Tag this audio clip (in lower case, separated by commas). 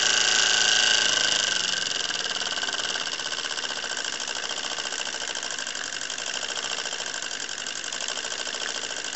idling, engine